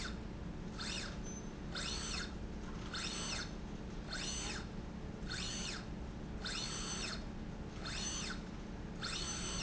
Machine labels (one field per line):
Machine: slide rail